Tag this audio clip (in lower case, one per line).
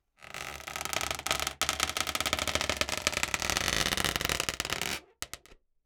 squeak